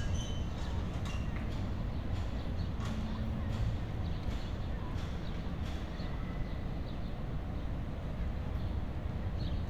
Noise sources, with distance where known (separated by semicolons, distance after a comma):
non-machinery impact